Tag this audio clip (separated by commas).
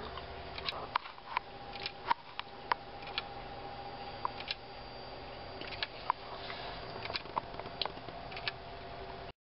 Tick-tock